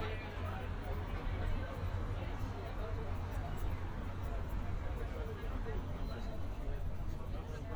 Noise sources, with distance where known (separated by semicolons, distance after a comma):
unidentified human voice